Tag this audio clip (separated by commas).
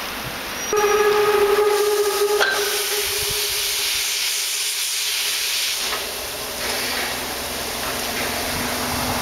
Hiss, Steam whistle, Steam